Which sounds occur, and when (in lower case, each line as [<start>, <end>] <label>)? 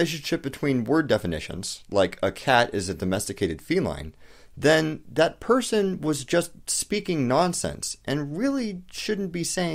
[0.00, 4.11] man speaking
[0.00, 9.74] background noise
[4.13, 4.61] breathing
[4.60, 9.74] man speaking